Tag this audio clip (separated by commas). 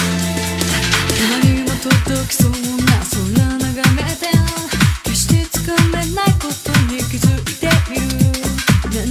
Music